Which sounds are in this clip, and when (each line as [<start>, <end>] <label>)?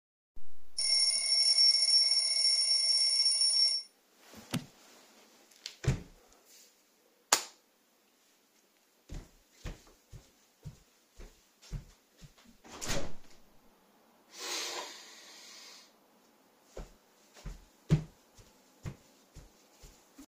[0.64, 3.87] phone ringing
[4.46, 4.76] door
[5.55, 6.09] door
[7.27, 7.58] light switch
[9.12, 12.68] footsteps
[12.67, 13.33] window
[14.28, 15.51] window
[16.68, 20.26] footsteps